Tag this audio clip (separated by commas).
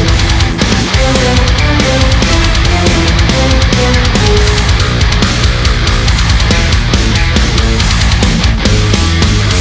Musical instrument, Music, Guitar, Electric guitar